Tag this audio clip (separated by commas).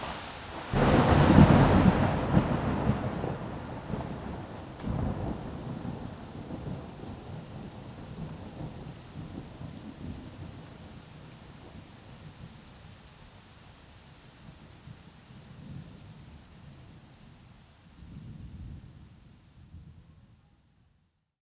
Rain, Thunder, Thunderstorm, Water